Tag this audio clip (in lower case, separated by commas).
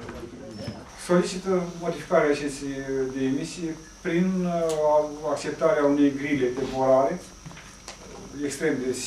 speech